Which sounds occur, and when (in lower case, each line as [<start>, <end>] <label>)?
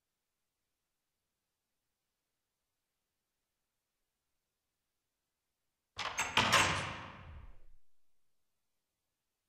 [5.94, 7.67] sound effect
[5.94, 7.73] video game sound